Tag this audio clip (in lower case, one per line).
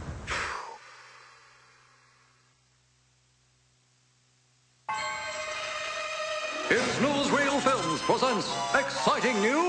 speech
music